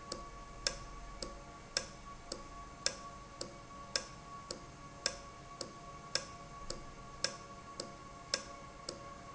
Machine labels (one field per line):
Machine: valve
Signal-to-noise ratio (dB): 6 dB